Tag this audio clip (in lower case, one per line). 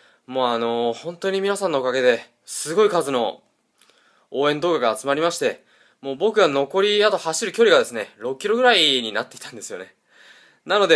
speech